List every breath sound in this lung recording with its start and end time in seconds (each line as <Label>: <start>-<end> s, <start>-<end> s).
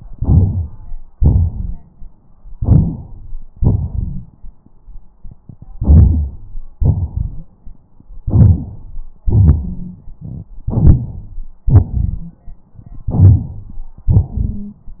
Inhalation: 0.10-0.91 s, 2.58-3.30 s, 5.78-6.67 s, 8.28-9.11 s, 11.69-12.54 s, 14.02-14.80 s
Exhalation: 1.18-2.24 s, 3.64-4.57 s, 6.82-7.86 s, 9.27-10.46 s, 10.70-11.52 s, 13.11-13.82 s
Wheeze: 9.58-9.98 s, 11.63-12.34 s, 14.30-14.77 s
Rhonchi: 3.58-4.31 s